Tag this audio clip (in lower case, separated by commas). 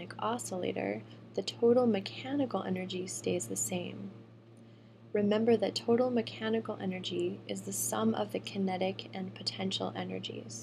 speech